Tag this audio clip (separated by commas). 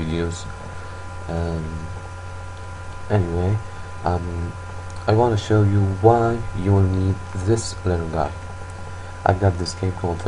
Speech